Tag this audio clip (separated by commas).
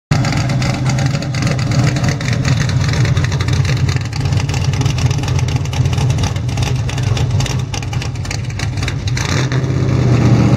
Car, outside, urban or man-made, Vehicle